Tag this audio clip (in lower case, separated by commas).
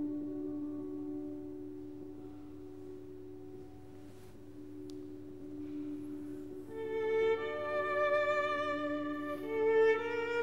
musical instrument, music, fiddle